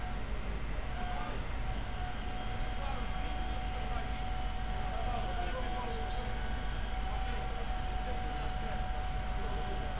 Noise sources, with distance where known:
person or small group talking

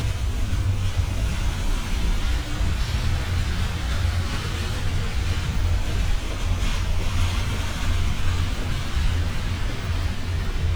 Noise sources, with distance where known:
large-sounding engine

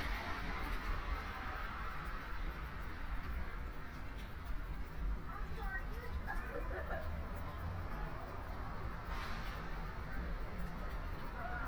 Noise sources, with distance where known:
background noise

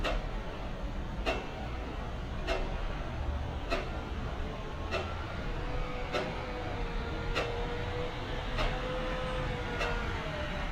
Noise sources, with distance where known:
engine of unclear size; unidentified impact machinery

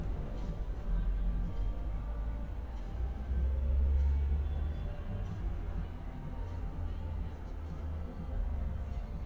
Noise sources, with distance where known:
music from an unclear source, far; unidentified human voice, far

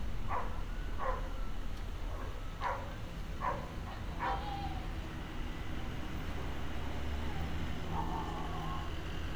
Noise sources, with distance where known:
dog barking or whining, near

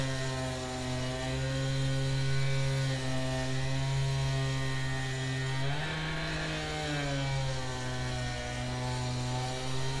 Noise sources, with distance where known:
unidentified powered saw

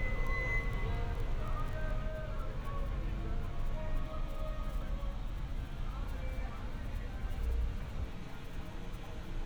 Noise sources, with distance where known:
large-sounding engine; music from a fixed source

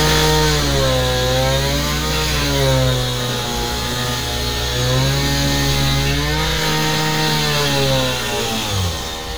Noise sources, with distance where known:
chainsaw, near

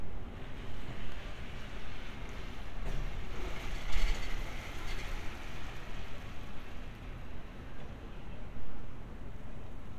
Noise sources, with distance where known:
background noise

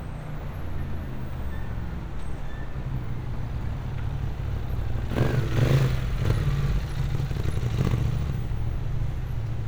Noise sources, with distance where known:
medium-sounding engine, near

